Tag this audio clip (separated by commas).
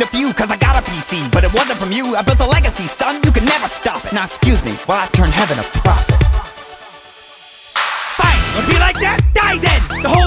Music